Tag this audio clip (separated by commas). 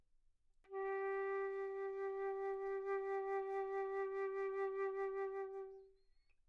Music, Wind instrument, Musical instrument